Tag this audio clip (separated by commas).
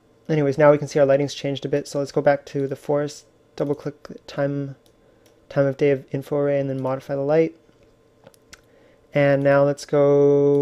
Speech